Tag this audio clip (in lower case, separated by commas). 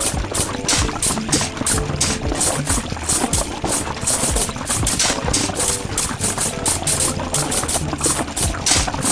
music